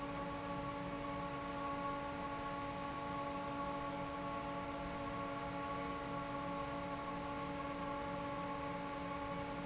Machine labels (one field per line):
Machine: fan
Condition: normal